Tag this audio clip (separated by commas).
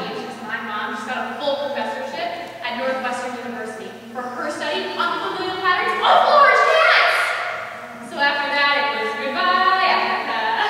monologue, woman speaking, Speech